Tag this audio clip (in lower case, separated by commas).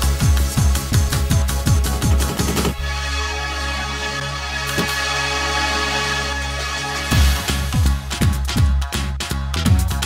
music, rhythm and blues